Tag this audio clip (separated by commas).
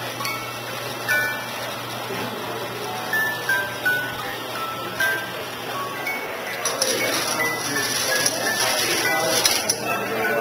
inside a small room, Music